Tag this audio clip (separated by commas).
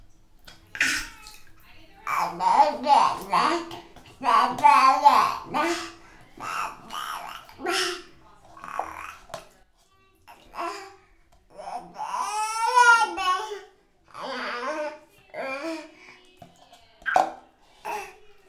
Speech, Human voice